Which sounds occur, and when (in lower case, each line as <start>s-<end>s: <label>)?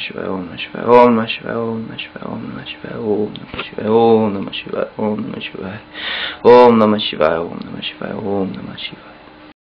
0.0s-9.4s: mechanisms
5.9s-6.4s: breathing
6.4s-9.0s: mantra